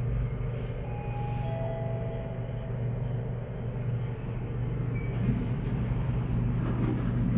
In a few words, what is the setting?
elevator